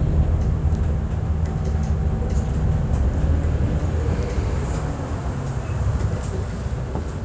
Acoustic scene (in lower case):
bus